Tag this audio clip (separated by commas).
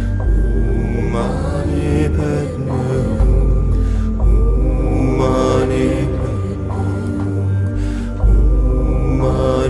Music, Mantra